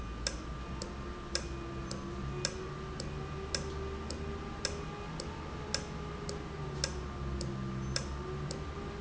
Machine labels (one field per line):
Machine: valve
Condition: normal